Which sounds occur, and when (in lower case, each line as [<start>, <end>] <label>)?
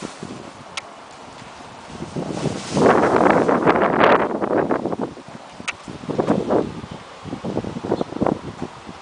[0.00, 9.01] mechanisms
[2.21, 3.15] surface contact